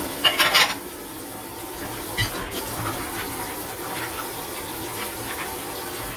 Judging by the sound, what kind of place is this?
kitchen